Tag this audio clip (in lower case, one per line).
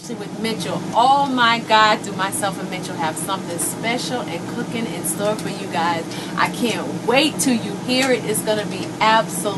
speech